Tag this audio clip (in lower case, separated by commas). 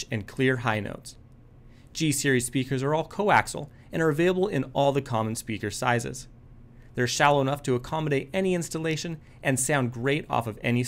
speech